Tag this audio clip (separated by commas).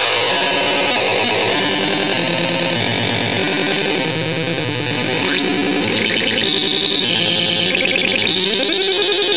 Synthesizer, Music